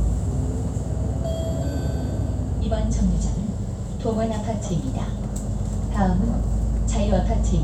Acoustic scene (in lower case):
bus